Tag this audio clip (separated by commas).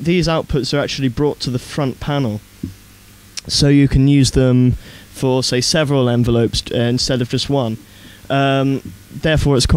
Speech